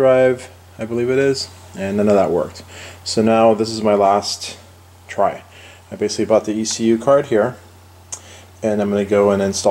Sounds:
speech

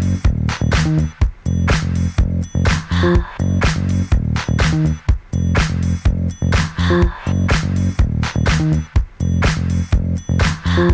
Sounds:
funk
music

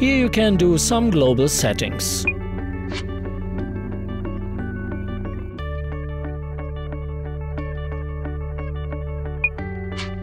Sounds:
speech
music

